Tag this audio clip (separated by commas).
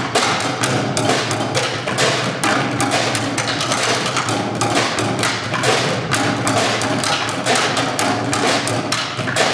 Music, Wood block, Percussion